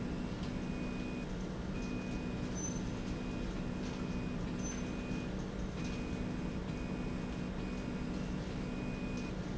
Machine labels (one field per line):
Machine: slide rail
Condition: normal